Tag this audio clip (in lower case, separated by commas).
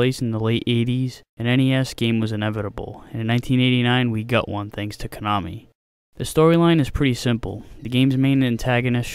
speech, speech synthesizer